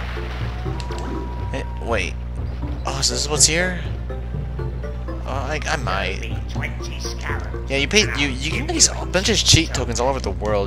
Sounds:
Speech, Music

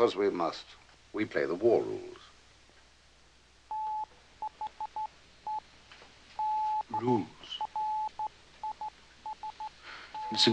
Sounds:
Speech

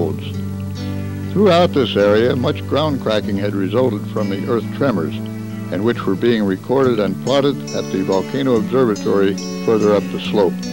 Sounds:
Music, Speech

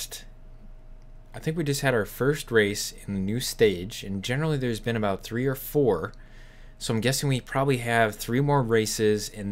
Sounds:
Speech

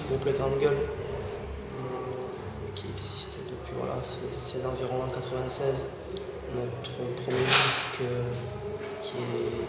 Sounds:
Speech

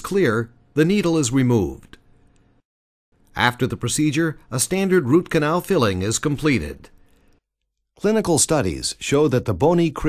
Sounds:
monologue, Speech

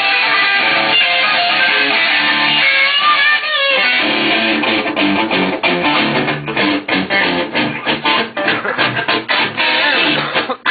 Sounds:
Musical instrument, Music, Guitar

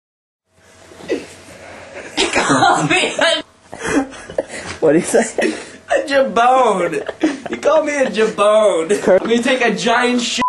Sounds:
Speech

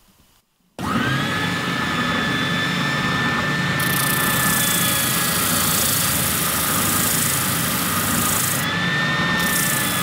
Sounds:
inside a large room or hall

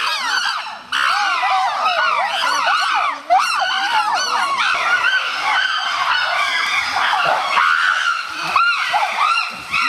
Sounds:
chimpanzee pant-hooting

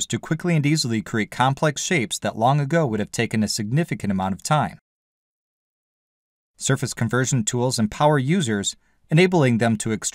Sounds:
Speech

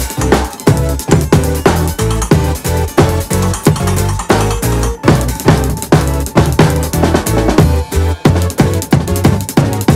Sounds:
playing bass drum

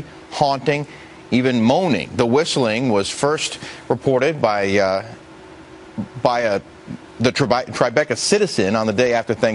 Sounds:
Speech

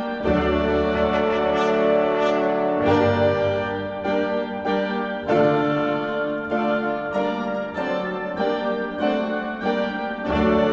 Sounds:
Music

